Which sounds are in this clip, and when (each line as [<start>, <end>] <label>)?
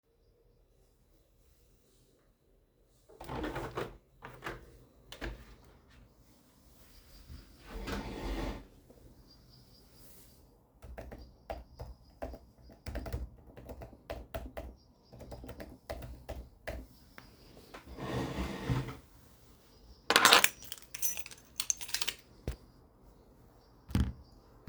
[3.08, 5.56] window
[10.79, 17.86] keyboard typing
[20.04, 22.69] keys